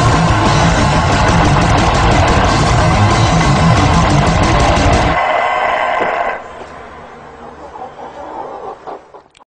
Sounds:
chicken, music, animal

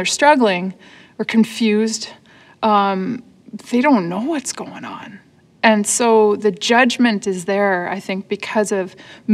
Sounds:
speech

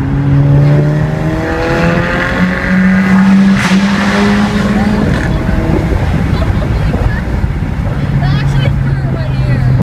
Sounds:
speech

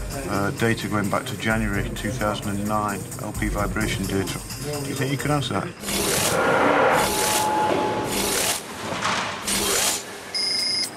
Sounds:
music, speech

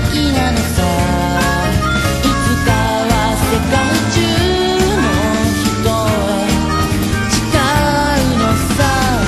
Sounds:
exciting music, music

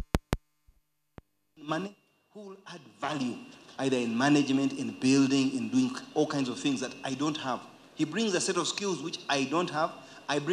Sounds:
speech

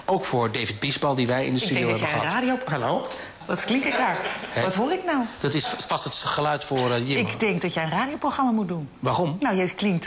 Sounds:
speech

